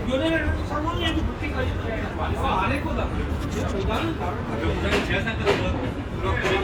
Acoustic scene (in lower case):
restaurant